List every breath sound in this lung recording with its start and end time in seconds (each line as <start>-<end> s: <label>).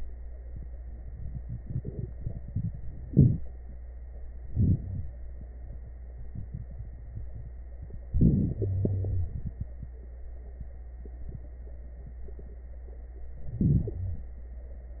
3.06-3.47 s: inhalation
4.47-5.11 s: inhalation
4.83-5.11 s: wheeze
8.10-8.56 s: inhalation
8.56-9.41 s: exhalation
8.56-9.41 s: wheeze
13.48-14.29 s: inhalation
13.95-14.29 s: wheeze